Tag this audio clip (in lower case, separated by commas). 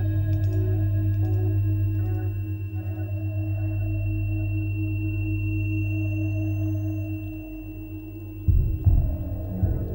sad music, music